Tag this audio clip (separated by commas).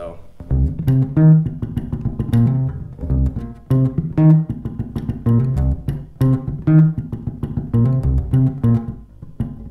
playing bass guitar